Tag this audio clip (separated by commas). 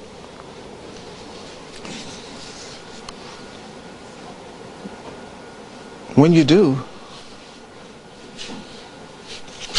Speech, inside a large room or hall